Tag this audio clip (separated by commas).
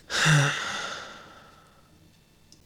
Respiratory sounds, Sigh, Breathing, Human voice